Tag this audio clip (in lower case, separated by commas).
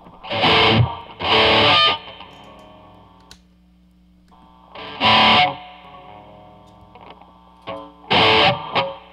electric guitar, effects unit, music, distortion